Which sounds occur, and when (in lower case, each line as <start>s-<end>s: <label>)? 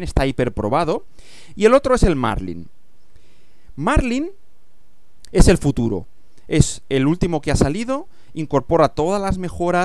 0.0s-1.0s: male speech
0.0s-9.8s: background noise
1.1s-1.5s: breathing
1.6s-2.7s: male speech
1.9s-2.0s: wind noise (microphone)
3.1s-3.7s: breathing
3.7s-4.3s: male speech
3.9s-4.0s: wind noise (microphone)
5.2s-5.3s: tick
5.3s-6.0s: male speech
6.1s-6.4s: surface contact
6.5s-6.8s: male speech
6.5s-6.6s: wind noise (microphone)
6.9s-8.0s: male speech
7.2s-7.2s: wind noise (microphone)
7.4s-7.6s: wind noise (microphone)
8.1s-8.3s: breathing
8.3s-9.8s: male speech
9.2s-9.3s: wind noise (microphone)